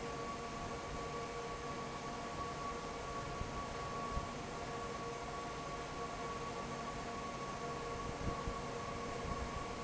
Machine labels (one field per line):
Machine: fan